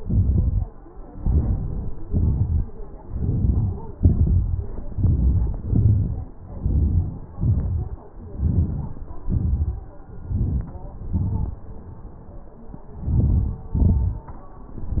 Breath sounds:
Inhalation: 1.12-1.92 s, 3.05-3.83 s, 4.74-5.71 s, 6.47-7.27 s, 8.12-8.84 s, 10.17-11.10 s, 12.81-13.70 s
Exhalation: 1.90-2.60 s, 3.81-4.46 s, 5.75-6.24 s, 7.34-7.89 s, 8.80-9.43 s, 11.04-11.78 s, 13.77-14.36 s

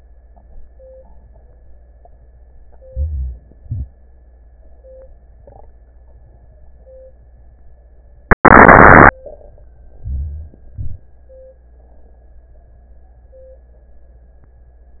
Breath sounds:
Inhalation: 2.85-3.62 s, 10.06-10.67 s
Exhalation: 3.60-4.06 s, 10.74-11.20 s
Crackles: 3.60-4.08 s

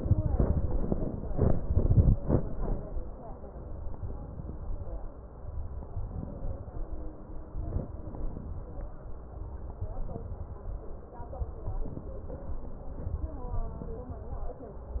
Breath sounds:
Inhalation: 5.93-6.75 s, 7.56-8.67 s, 9.81-10.76 s
Crackles: 7.56-8.67 s, 9.81-10.76 s

